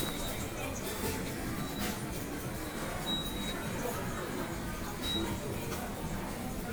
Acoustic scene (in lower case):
subway station